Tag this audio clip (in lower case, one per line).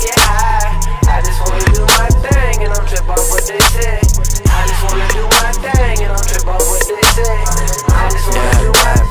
music